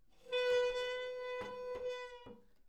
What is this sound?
wooden furniture moving